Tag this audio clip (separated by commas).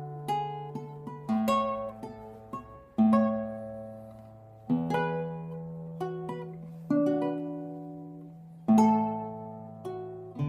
Music, Musical instrument, Acoustic guitar, Plucked string instrument